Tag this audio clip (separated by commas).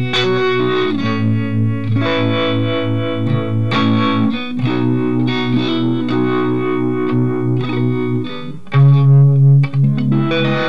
Guitar, Electric guitar, Music, playing electric guitar